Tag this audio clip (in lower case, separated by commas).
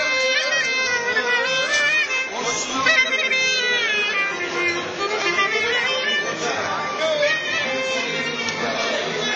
speech, music